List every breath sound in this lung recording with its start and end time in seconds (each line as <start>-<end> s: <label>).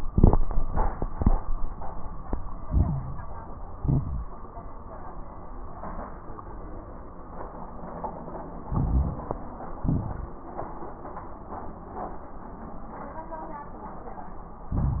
2.60-3.51 s: inhalation
2.60-3.51 s: crackles
3.76-4.36 s: exhalation
3.76-4.36 s: crackles
8.64-9.56 s: inhalation
8.64-9.56 s: crackles
9.80-10.40 s: exhalation
9.80-10.40 s: crackles
14.71-15.00 s: inhalation
14.71-15.00 s: crackles